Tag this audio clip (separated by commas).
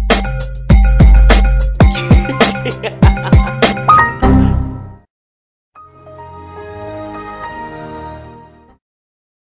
Music